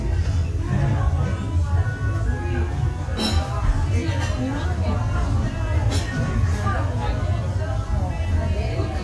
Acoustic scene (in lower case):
restaurant